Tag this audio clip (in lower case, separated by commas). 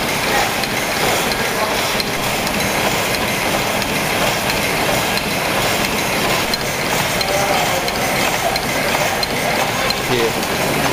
engine, speech